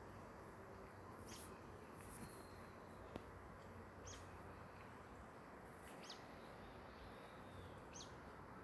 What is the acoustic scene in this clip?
park